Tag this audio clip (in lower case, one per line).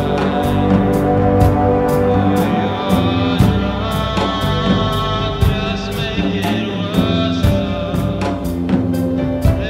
music